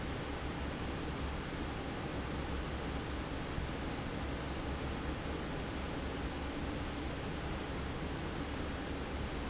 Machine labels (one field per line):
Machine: fan